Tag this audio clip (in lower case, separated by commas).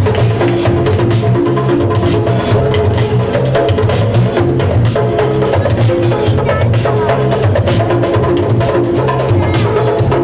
music, speech